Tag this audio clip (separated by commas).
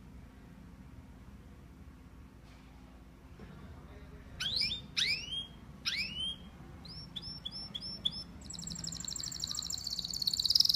bird chirping